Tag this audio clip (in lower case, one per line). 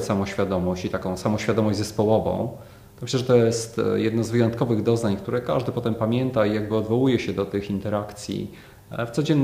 speech